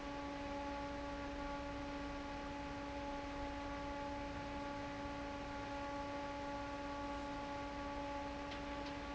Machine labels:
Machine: fan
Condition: normal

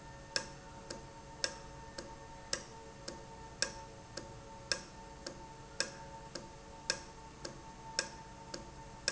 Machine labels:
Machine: valve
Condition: normal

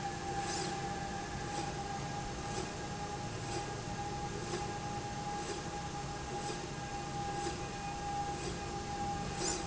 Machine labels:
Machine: slide rail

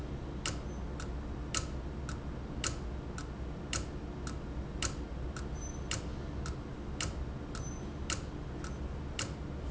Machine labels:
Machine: valve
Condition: abnormal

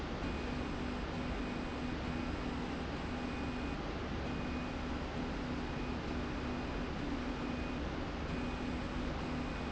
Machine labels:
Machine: slide rail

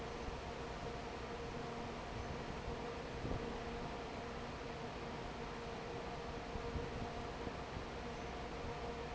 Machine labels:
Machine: fan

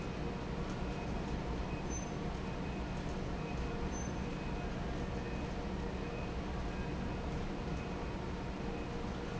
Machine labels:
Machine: fan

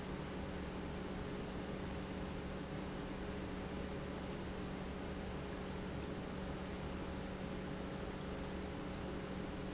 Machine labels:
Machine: pump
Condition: normal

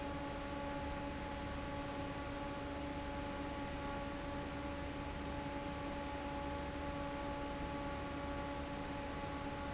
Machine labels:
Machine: fan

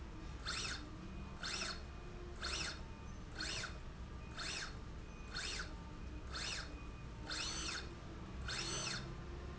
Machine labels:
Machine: slide rail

